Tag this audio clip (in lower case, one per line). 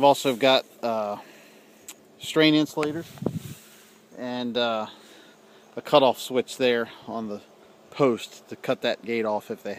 speech